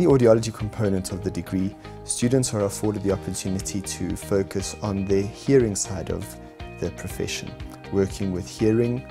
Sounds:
music, speech, male speech, narration

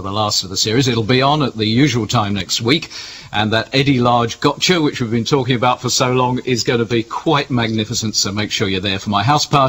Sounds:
speech, narration

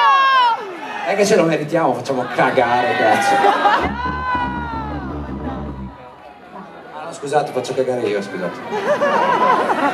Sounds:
speech, music

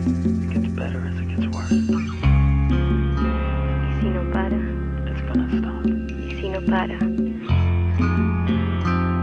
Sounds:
music, speech

